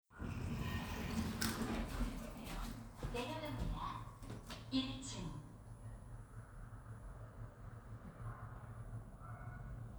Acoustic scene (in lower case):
elevator